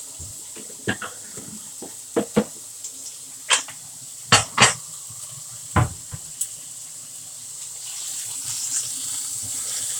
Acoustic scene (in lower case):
kitchen